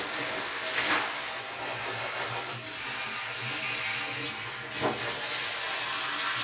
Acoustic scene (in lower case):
restroom